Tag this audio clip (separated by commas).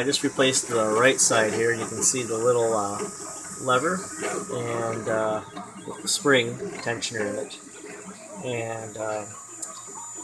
Speech